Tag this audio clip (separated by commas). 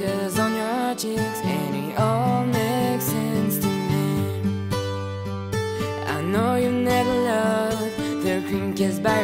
Independent music, Music